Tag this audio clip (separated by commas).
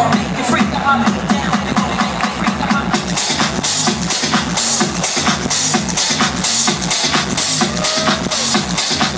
Music, Dance music, Pop music